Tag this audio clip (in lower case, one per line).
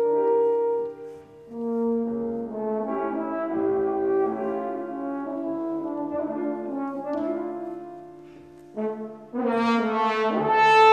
music
clarinet